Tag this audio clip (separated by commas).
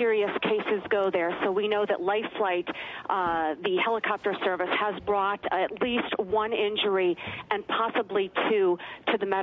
Speech